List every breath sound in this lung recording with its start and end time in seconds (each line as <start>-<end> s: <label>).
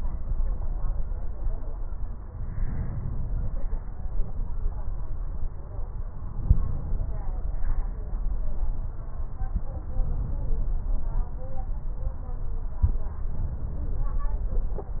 2.56-3.62 s: inhalation
6.31-7.23 s: inhalation
6.31-7.23 s: crackles
9.97-10.89 s: inhalation
13.34-14.27 s: inhalation